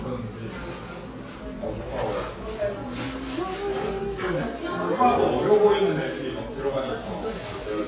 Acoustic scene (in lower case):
cafe